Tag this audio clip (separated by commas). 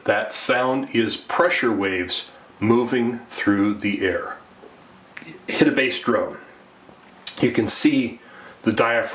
Speech